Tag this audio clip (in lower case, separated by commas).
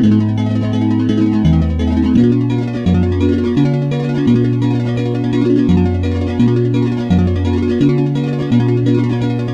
music